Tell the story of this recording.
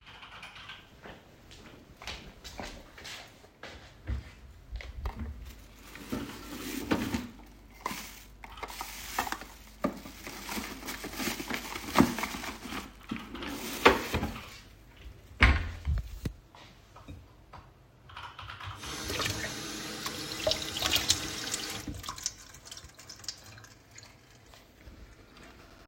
I walk to the kitchen, open the drawer, open the trashbin and put plastic in it. Then I wash my hands. My roommate is typing on his keyboard in the background.